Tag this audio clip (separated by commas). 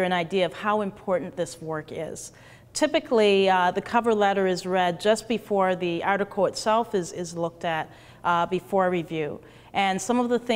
Speech